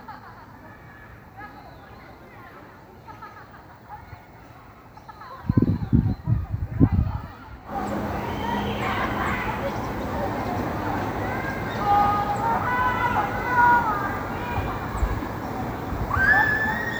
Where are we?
in a park